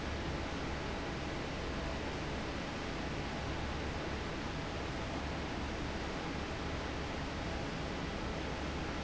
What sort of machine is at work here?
fan